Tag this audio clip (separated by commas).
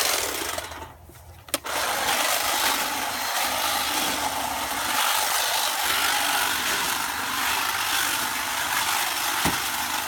hedge trimmer running